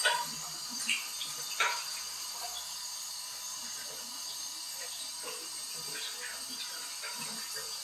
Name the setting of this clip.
restroom